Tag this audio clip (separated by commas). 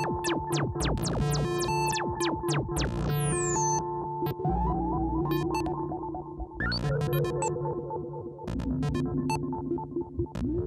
playing synthesizer